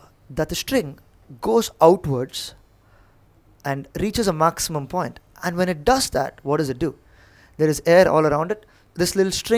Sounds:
speech

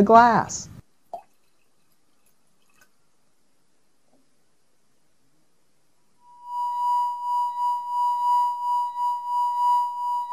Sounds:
speech

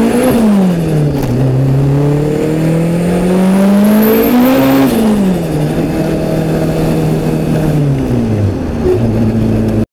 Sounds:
vehicle
car

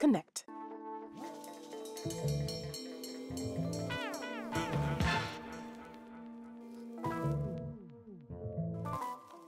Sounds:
music
speech

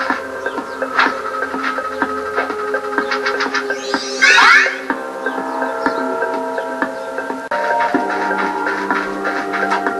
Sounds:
music

